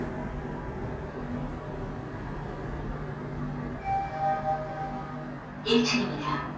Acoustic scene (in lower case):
elevator